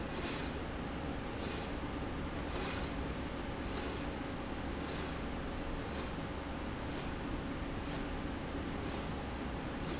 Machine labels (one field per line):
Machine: slide rail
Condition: normal